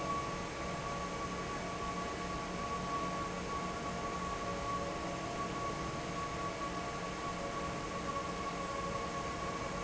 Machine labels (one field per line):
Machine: fan